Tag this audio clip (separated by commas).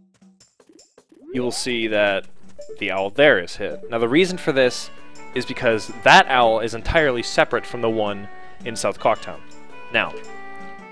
Music, Speech